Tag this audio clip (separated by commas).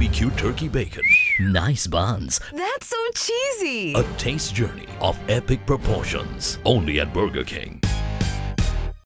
Speech, Music